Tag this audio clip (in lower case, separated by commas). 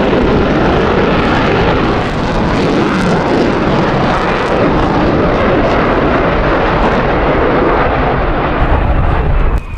airplane flyby